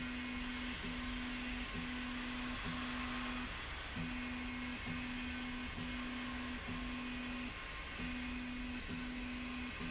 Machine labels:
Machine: slide rail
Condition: normal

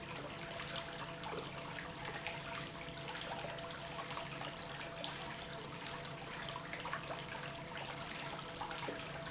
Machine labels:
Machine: pump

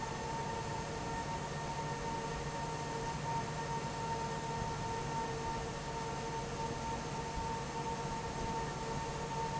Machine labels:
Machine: fan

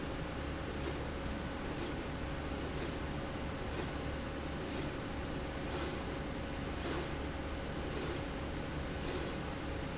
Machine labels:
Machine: slide rail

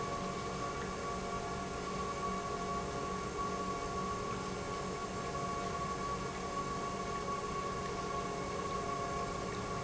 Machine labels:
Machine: pump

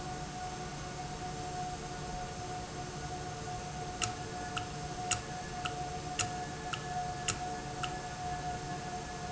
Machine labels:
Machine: valve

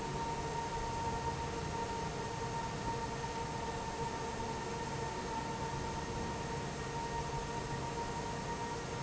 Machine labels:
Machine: fan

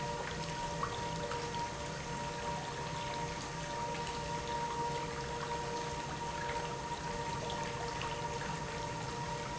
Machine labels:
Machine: pump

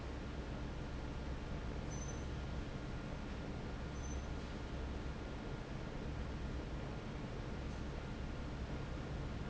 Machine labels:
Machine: fan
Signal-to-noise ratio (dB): 0 dB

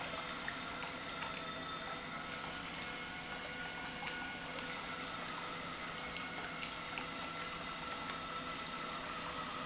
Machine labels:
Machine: pump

